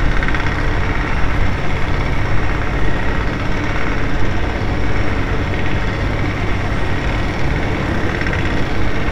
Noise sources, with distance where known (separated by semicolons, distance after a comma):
engine of unclear size, near